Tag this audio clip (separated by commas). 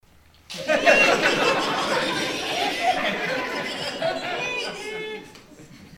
Crowd, Human group actions